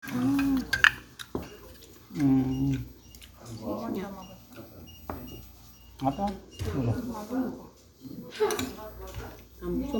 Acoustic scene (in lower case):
restaurant